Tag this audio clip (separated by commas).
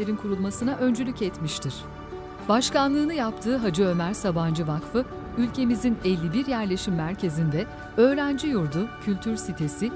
Speech, Music